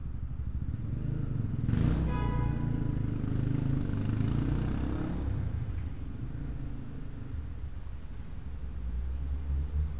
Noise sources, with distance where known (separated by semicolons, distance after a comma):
medium-sounding engine, near; car horn, near